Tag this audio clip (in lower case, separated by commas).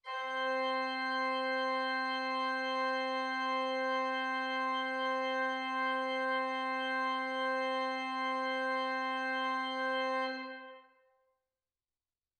keyboard (musical), music, musical instrument, organ